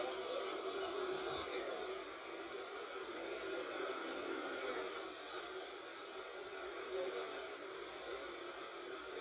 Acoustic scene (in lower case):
bus